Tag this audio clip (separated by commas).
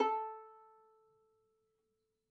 Music, Musical instrument, Bowed string instrument